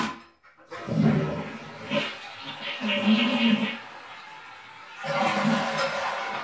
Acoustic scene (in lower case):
restroom